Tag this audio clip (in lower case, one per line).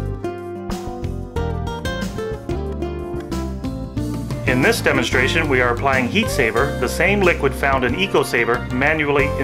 music
speech